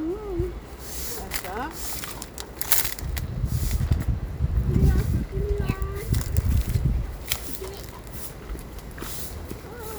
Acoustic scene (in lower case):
residential area